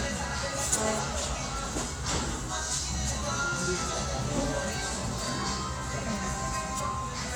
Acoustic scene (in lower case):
restaurant